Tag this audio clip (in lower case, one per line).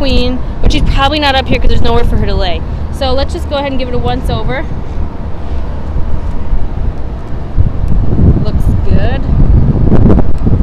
wind noise (microphone)
outside, urban or man-made
speech